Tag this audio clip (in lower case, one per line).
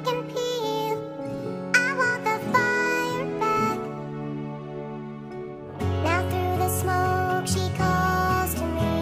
music